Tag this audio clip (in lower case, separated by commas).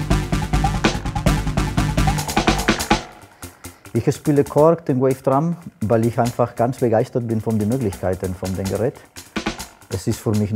music, speech